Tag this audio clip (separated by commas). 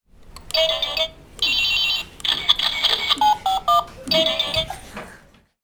Telephone, Alarm